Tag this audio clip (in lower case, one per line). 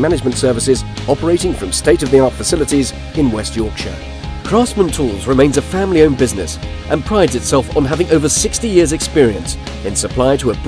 music
speech